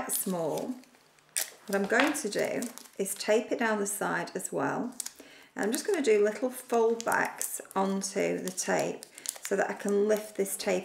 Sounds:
Speech

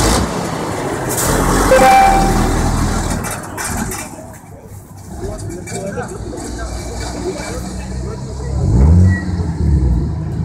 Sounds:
Speech

